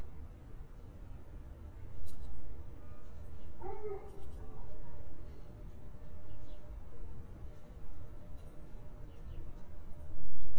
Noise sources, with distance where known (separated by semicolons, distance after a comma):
dog barking or whining, far